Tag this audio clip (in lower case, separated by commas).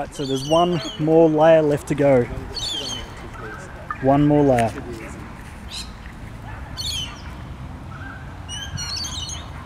crow, bird